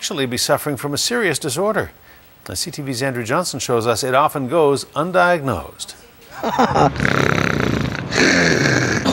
A man giving a speech, laughing and snoring noises